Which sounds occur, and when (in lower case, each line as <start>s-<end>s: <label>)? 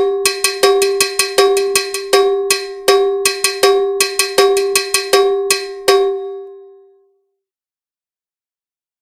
0.0s-7.1s: music